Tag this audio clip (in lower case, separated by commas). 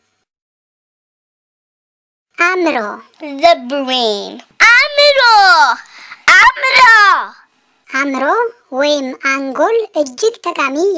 speech, child speech